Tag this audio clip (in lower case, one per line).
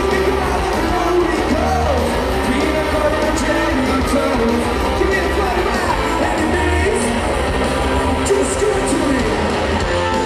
singing
music
heavy metal